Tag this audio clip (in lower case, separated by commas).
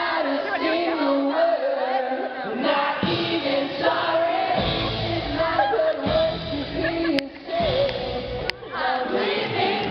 singing, music, inside a large room or hall, pop music, speech